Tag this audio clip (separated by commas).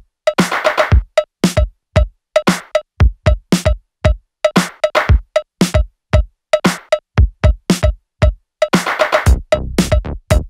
Music